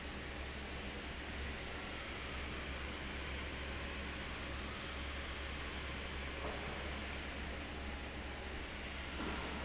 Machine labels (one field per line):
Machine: fan